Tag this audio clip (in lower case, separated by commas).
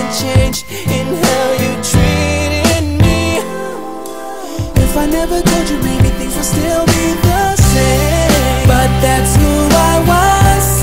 music